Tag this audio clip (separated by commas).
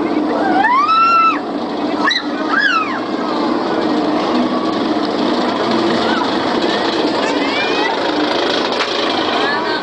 Speech, Engine